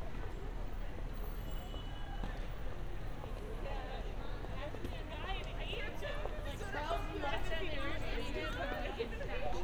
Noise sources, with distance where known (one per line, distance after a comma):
person or small group talking, near